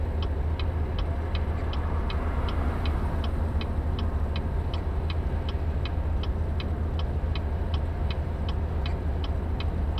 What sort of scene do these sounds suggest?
car